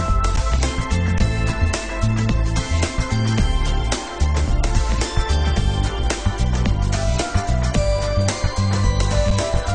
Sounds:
music

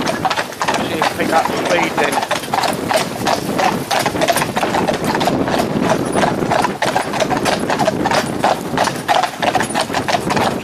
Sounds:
horse clip-clop

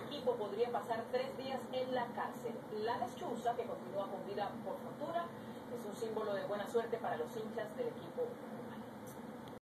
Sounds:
speech

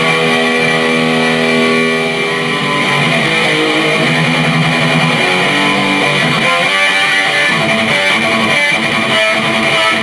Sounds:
plucked string instrument
musical instrument
bass guitar
music
guitar
strum

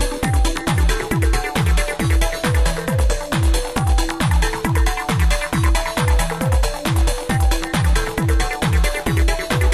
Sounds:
music

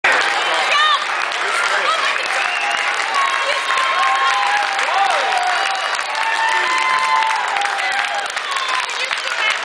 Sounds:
speech

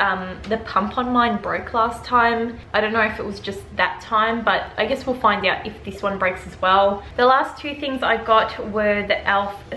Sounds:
opening or closing drawers

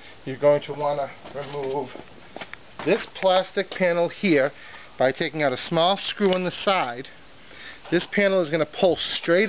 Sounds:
speech

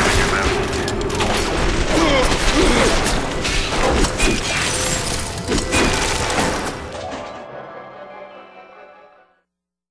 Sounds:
speech
music

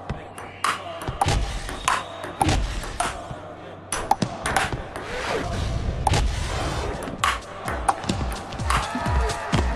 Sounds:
playing table tennis

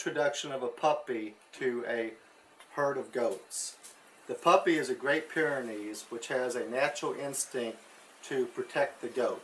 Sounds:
speech

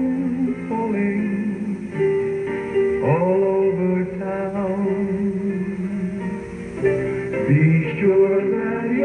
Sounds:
music
male singing

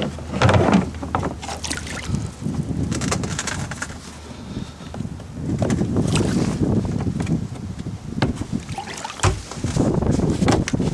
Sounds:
water vehicle
outside, rural or natural

